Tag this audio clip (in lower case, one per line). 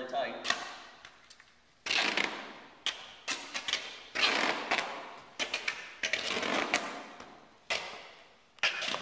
speech